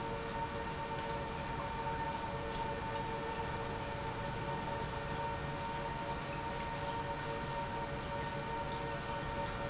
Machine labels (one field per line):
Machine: pump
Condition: normal